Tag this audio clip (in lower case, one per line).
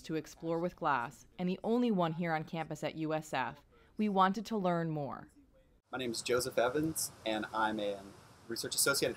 speech